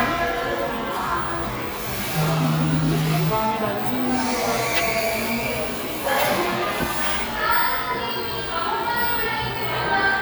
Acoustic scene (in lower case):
cafe